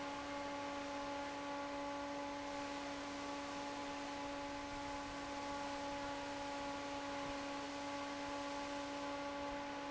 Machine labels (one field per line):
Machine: fan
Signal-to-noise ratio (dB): 6 dB